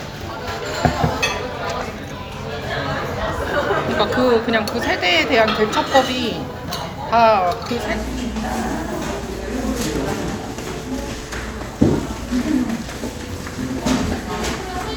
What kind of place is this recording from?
crowded indoor space